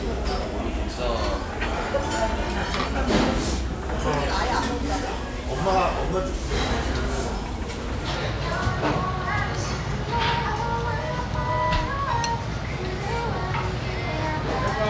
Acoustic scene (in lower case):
restaurant